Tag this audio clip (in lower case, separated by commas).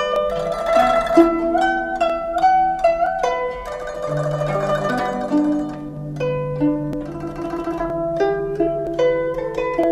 sitar, music, harp